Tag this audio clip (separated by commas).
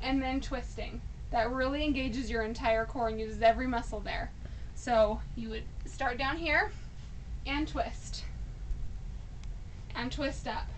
Speech